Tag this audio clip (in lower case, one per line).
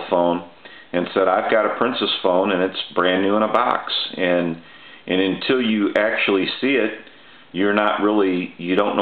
speech